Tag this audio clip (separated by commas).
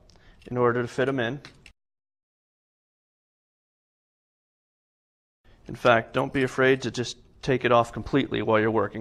Speech